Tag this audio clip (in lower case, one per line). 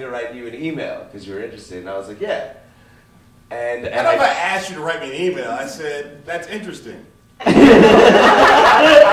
speech